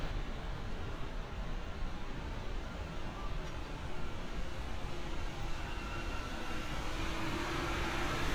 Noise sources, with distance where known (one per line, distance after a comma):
engine of unclear size